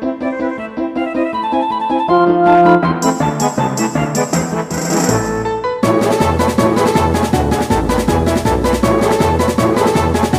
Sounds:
Music

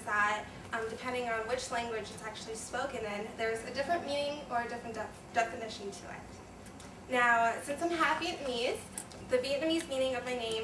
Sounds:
Speech, woman speaking

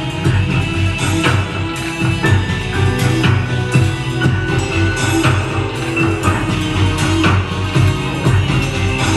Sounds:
Sound effect

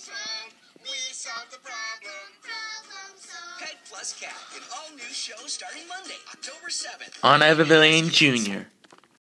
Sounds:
Speech, Music

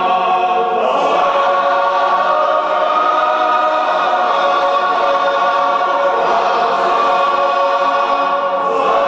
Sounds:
Music

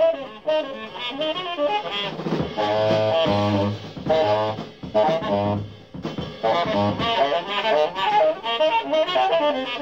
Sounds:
Music, Musical instrument, Saxophone

